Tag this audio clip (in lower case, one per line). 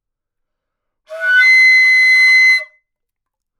woodwind instrument
musical instrument
music